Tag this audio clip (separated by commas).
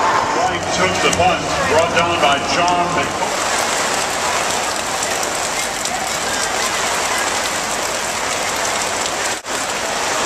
Rain, Rain on surface